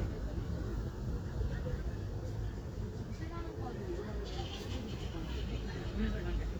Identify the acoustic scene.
residential area